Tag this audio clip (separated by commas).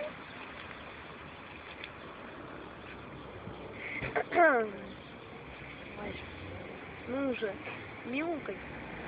Speech